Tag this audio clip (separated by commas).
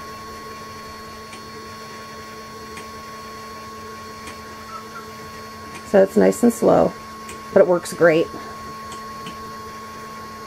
Speech